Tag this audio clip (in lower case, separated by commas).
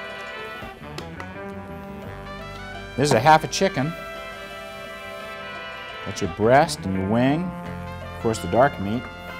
music, speech